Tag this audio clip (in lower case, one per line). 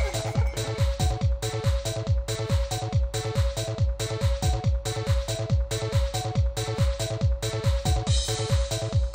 music
trance music